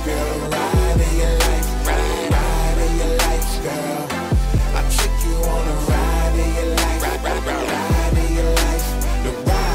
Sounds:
pop music, music

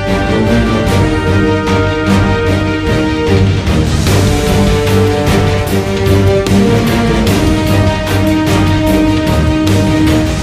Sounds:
music, theme music

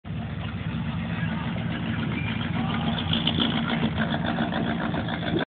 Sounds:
speech, truck, vehicle

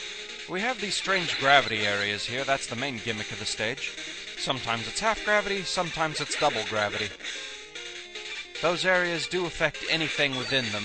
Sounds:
speech, music

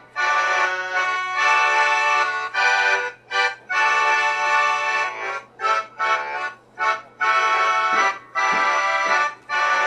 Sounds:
accordion, music

